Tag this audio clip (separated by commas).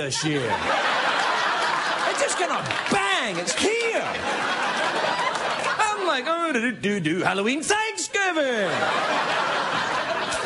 Narration, Speech